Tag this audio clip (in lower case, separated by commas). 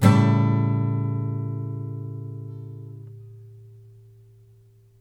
musical instrument, guitar, music, strum, acoustic guitar, plucked string instrument